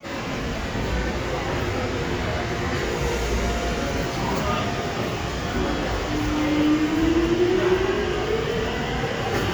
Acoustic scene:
subway station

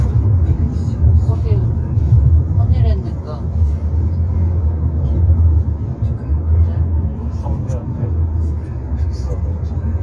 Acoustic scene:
car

